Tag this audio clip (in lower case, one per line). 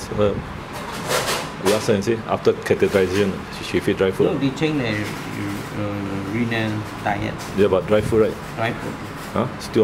speech